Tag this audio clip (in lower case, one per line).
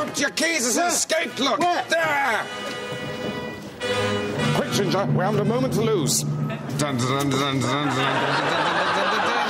music
speech